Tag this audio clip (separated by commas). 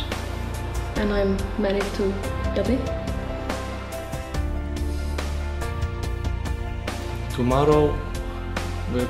Music, inside a large room or hall, Speech